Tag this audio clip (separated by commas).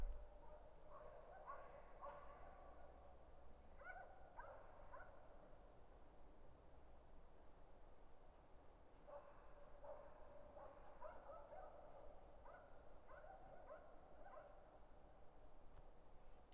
Dog, pets, Animal